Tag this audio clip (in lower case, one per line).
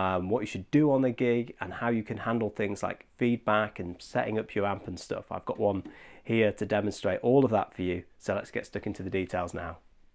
speech